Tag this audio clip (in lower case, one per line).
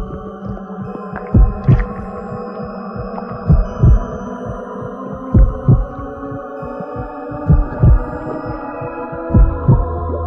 music
background music